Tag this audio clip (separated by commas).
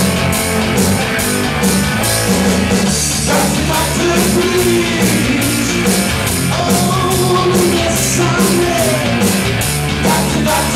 Music